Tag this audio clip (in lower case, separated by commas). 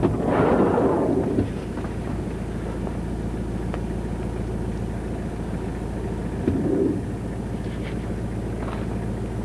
outside, rural or natural